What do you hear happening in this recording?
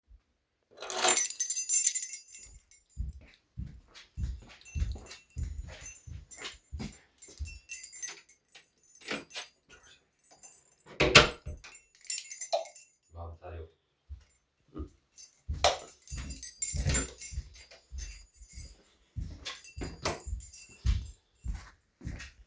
I picked up the keys from kitchen shelf and opened the door of living room and turned the light switch on and and entered the living room and closed the door. My friends are talking there.